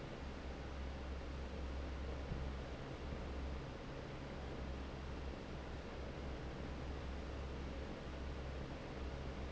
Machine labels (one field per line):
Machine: fan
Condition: normal